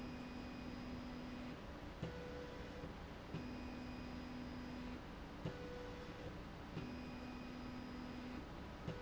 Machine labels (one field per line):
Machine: slide rail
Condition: normal